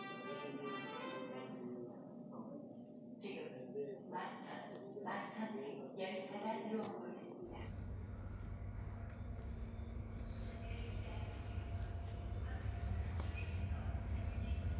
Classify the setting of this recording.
subway station